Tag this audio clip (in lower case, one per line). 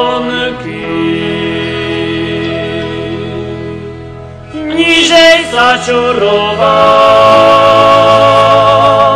folk music
music